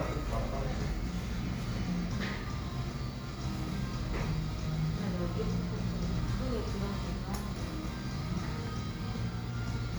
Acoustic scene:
cafe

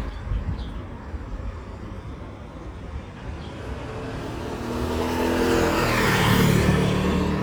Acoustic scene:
residential area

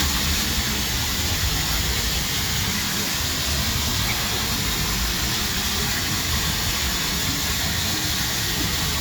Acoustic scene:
park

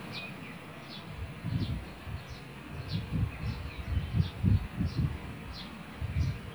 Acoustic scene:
park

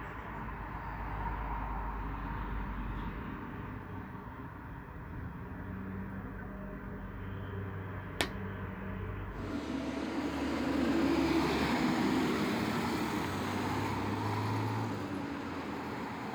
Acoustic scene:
street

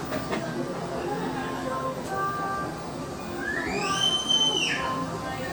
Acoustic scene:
cafe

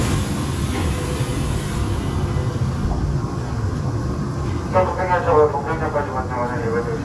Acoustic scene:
subway train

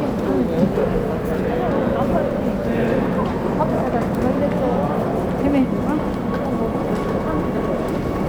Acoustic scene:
subway station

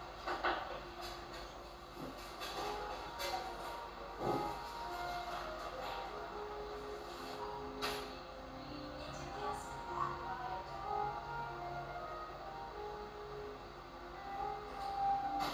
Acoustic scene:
cafe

